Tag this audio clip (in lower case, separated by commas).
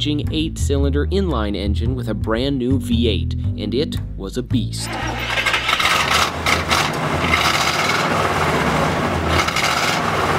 vehicle, music, speech, outside, urban or man-made, car